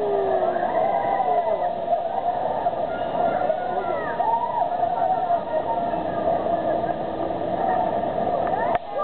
A droning sound occurs, water is splashing, and a crowd of people are whooping, talking and laughing